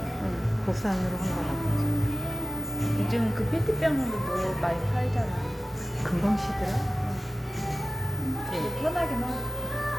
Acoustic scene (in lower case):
cafe